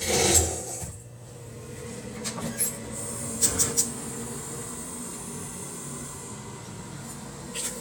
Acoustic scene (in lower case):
kitchen